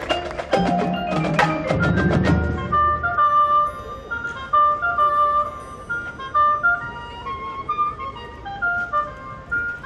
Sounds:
speech
music
outside, urban or man-made

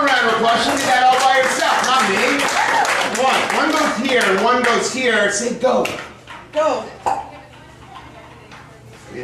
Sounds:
speech

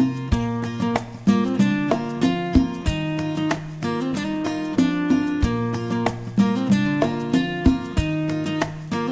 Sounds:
music

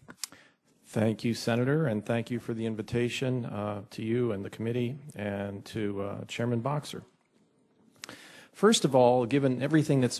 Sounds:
man speaking
speech
monologue

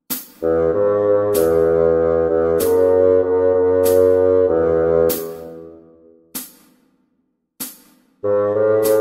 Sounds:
playing bassoon

